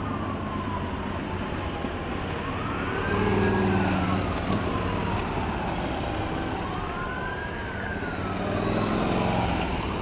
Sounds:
Fire engine, Motorcycle, Emergency vehicle, outside, urban or man-made, Vehicle, Car, Truck

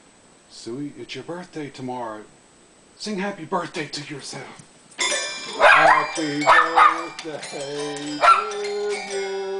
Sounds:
Bark, Dog, inside a small room, pets, Music, Animal, Singing, Speech

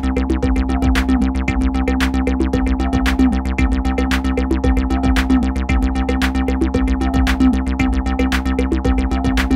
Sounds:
Music

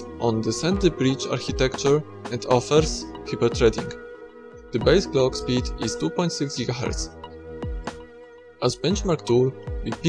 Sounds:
Music, Speech

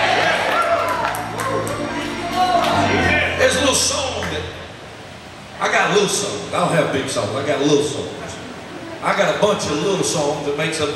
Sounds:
Speech, Music

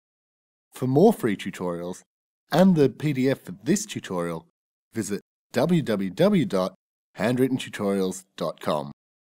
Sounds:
Speech

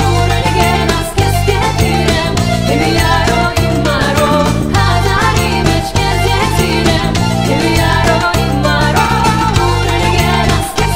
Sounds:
Music, inside a large room or hall, Singing

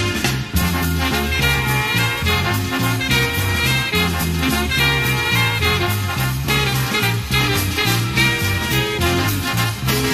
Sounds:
Exciting music, Music

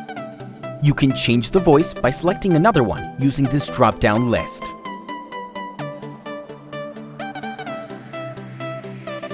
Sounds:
Narration, Speech, Male speech, Music

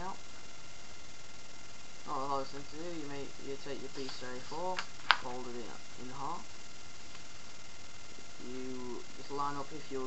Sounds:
Speech

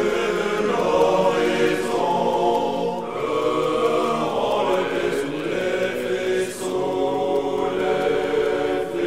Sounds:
Mantra

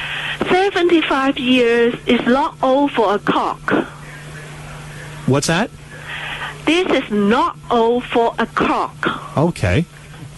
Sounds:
Speech

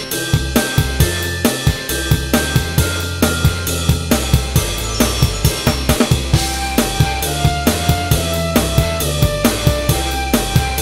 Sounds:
Music, Marimba, Drum kit

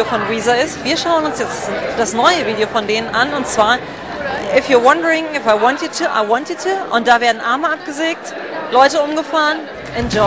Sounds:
Speech

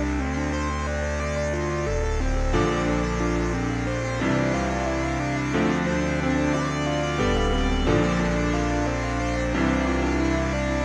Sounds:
Music

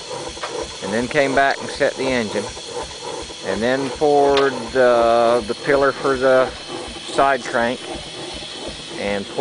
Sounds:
Speech, Engine

